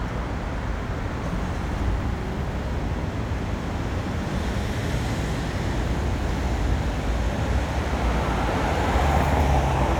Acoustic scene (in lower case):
street